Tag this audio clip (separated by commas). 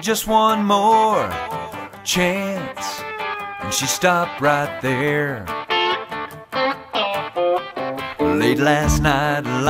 Music, Exciting music